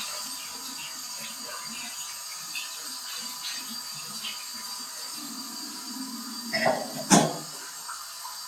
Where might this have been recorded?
in a restroom